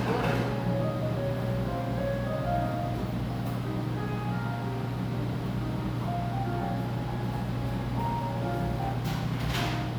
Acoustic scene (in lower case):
crowded indoor space